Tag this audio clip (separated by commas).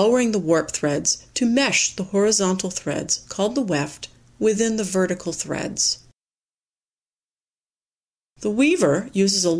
Narration